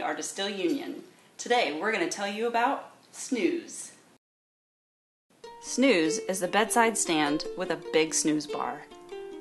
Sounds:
Music, Speech

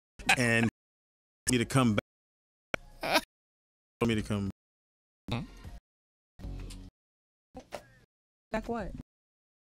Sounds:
Music, Speech, Radio

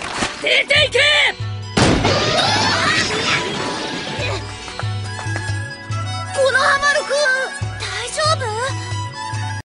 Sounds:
Music, Speech

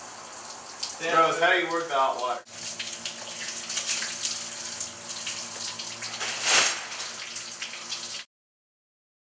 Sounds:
Water, faucet

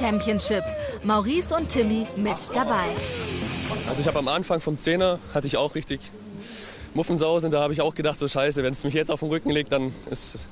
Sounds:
Speech, Music

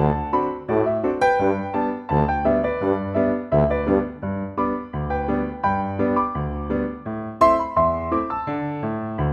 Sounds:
Music

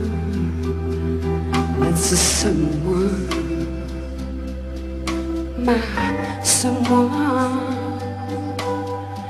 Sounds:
Music

